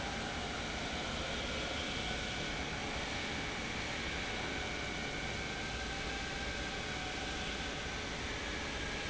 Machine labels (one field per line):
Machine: pump